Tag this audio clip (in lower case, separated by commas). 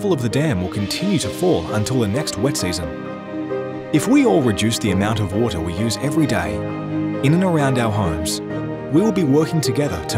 speech, music